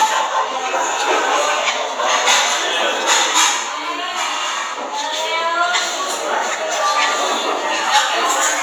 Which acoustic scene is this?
restaurant